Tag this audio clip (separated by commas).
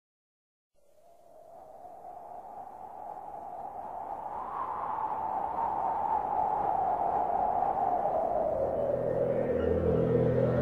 Music